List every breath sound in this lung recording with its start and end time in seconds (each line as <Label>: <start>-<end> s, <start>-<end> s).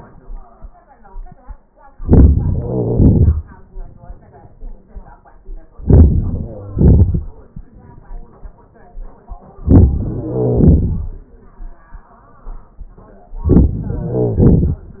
Inhalation: 1.90-2.62 s, 5.75-6.55 s, 9.56-10.23 s, 13.30-14.10 s
Exhalation: 2.63-3.97 s, 6.57-7.81 s, 10.24-11.42 s, 14.09-15.00 s
Crackles: 1.89-2.61 s, 5.75-6.55 s, 6.57-7.81 s, 9.56-10.23 s